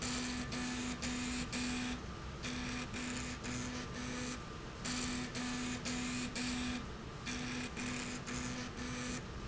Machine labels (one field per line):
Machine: slide rail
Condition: abnormal